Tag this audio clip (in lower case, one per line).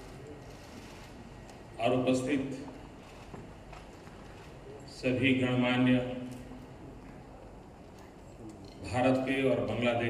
narration
speech
male speech